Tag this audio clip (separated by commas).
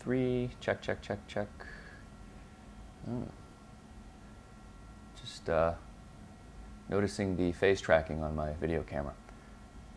Speech